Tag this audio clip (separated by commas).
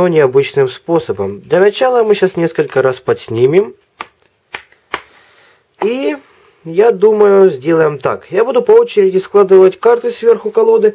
Speech